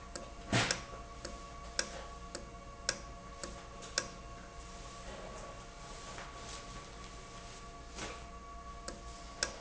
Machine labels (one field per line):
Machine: valve